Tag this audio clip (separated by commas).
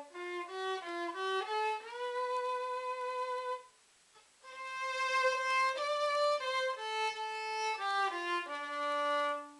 Violin, Musical instrument, Music